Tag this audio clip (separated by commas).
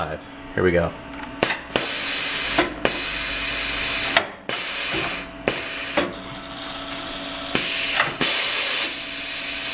Speech, Tools